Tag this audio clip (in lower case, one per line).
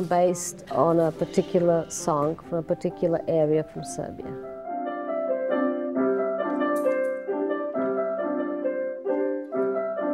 jazz
speech
music